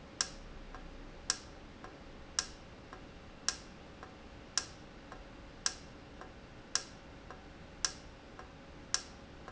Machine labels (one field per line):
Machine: valve